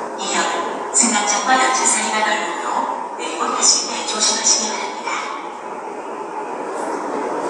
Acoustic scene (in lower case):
subway station